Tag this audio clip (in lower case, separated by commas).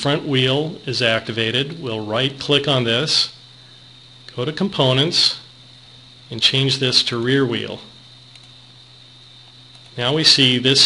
speech